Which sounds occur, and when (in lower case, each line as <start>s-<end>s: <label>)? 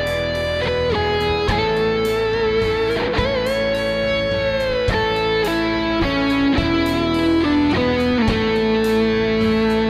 0.0s-9.8s: music